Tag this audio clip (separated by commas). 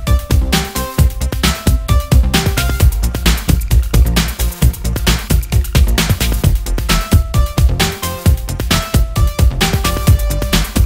Music